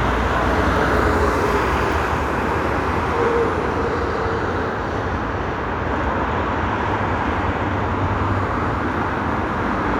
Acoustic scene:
street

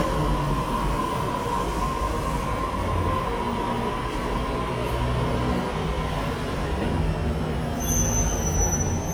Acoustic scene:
subway station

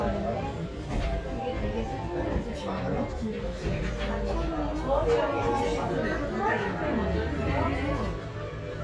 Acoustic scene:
crowded indoor space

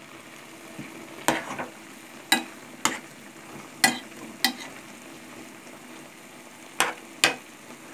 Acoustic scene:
kitchen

